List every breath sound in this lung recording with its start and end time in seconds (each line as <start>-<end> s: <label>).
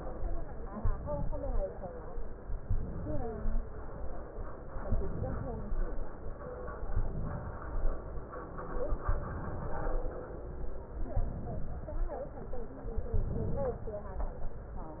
0.77-1.65 s: inhalation
2.66-3.54 s: inhalation
4.85-5.74 s: inhalation
6.90-7.70 s: inhalation
9.07-10.06 s: inhalation
11.11-12.10 s: inhalation
13.12-14.03 s: inhalation